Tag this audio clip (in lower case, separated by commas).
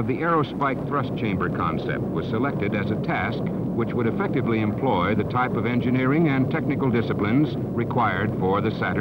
speech